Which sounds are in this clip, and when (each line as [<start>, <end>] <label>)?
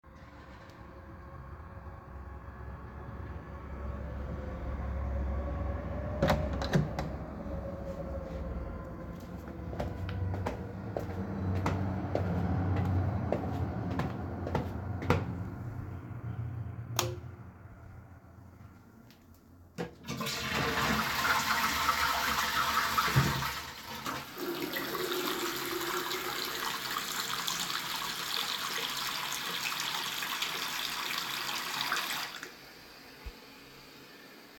[6.15, 7.34] door
[9.14, 15.42] footsteps
[16.89, 17.33] light switch
[19.68, 25.57] toilet flushing
[23.06, 32.71] running water